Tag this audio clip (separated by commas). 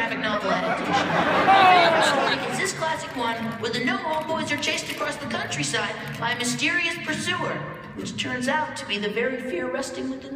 Speech, Music